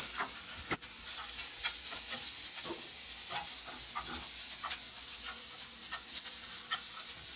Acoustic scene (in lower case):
kitchen